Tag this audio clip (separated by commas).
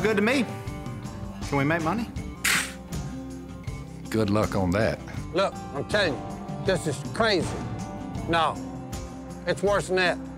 Music, Speech